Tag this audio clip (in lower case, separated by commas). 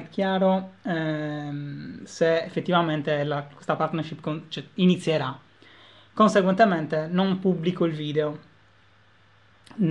speech